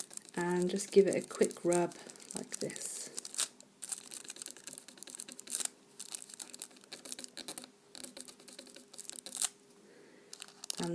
A woman speaking as plastic crinkles